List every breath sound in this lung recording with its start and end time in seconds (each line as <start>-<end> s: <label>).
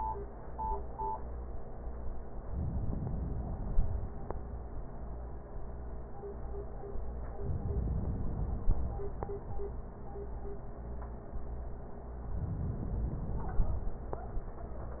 2.54-4.30 s: inhalation
7.35-9.55 s: inhalation
12.28-14.03 s: inhalation